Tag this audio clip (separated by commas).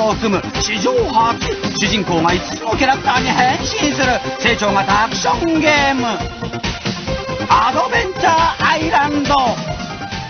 Music, Speech